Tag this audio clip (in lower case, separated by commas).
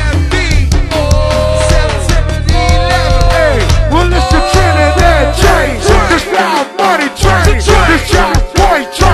music